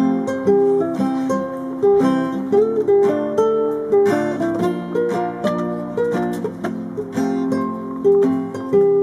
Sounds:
acoustic guitar

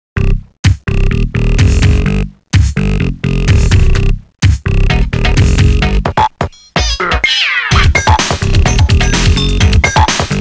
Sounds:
music, sampler

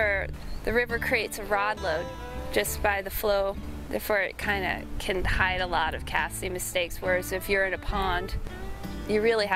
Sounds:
music, speech, outside, rural or natural

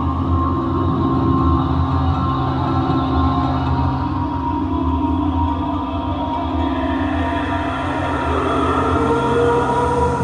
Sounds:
music

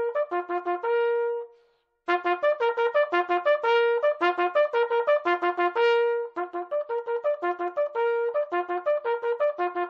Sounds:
playing bugle

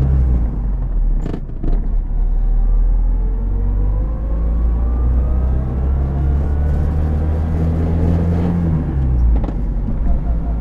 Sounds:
vehicle, car, accelerating

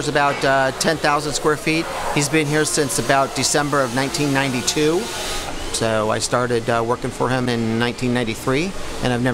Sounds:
speech

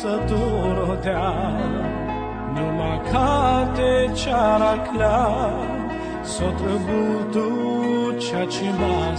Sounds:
music

